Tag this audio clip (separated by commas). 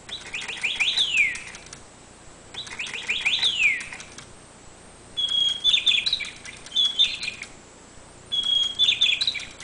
bird chirping, tweet